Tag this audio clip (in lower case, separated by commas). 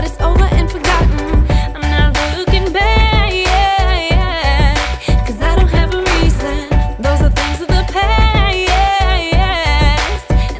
exciting music, music